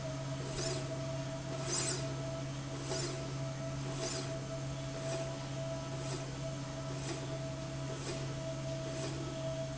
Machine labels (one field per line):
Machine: slide rail